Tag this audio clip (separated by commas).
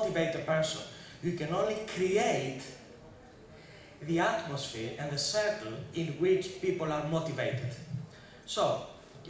Male speech, Speech, Narration